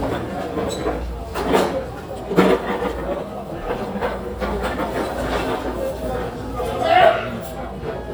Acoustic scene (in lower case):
crowded indoor space